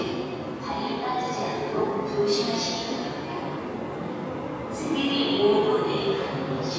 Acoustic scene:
subway station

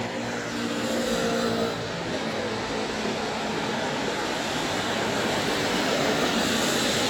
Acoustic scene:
street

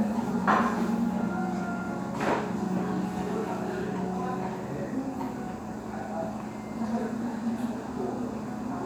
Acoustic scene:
restaurant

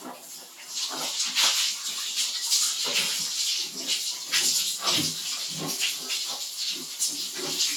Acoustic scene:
restroom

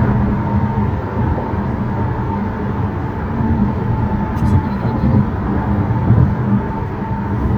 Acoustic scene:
car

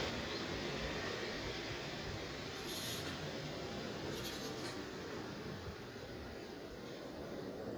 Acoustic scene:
residential area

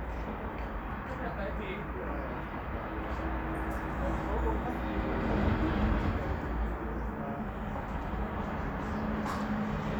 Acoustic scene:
residential area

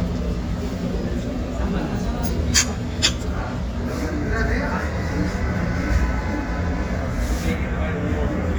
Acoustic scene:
restaurant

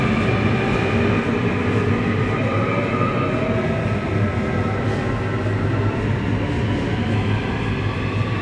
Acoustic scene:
subway station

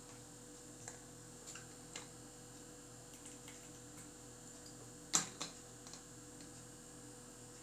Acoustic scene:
restroom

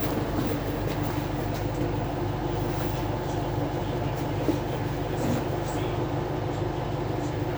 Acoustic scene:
bus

